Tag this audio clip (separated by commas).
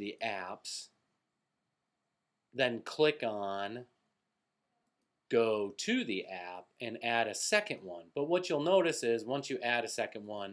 Speech